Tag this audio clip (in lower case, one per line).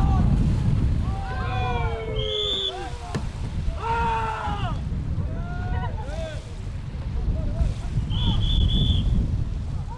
wind noise (microphone)
water vehicle
wind
rowboat